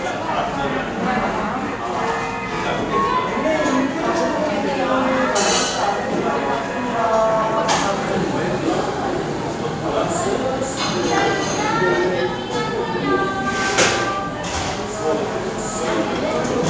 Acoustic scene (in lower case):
cafe